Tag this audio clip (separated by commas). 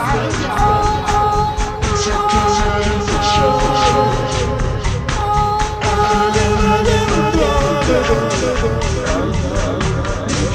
Music